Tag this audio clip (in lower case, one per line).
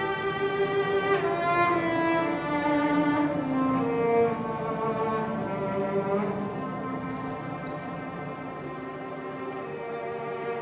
music
orchestra